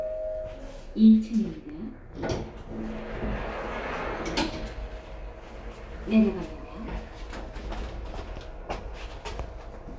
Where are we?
in an elevator